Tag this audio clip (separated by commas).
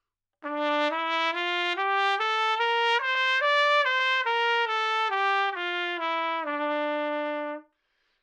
Musical instrument, Music, Trumpet, Brass instrument